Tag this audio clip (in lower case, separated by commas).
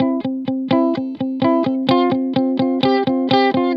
musical instrument, music, electric guitar, guitar, plucked string instrument